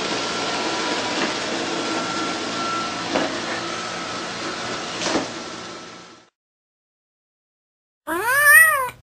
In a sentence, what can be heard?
Wind rustling loudly